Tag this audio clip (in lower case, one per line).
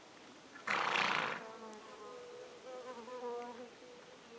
livestock
animal